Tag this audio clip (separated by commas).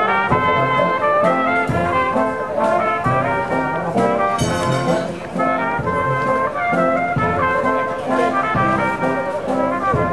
outside, urban or man-made, Music